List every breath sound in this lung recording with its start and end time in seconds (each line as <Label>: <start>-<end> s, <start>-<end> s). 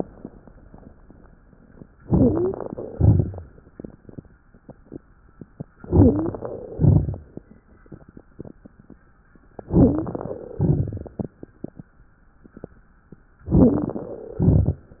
Inhalation: 1.99-2.70 s, 5.88-6.58 s, 9.71-10.42 s, 13.49-14.19 s
Exhalation: 2.90-3.62 s, 6.72-7.44 s, 10.55-11.35 s, 14.31-14.97 s
Wheeze: 1.99-2.70 s, 5.88-6.58 s, 9.71-10.19 s, 13.49-13.97 s
Crackles: 2.90-3.62 s, 6.72-7.44 s, 10.55-11.35 s, 14.31-14.97 s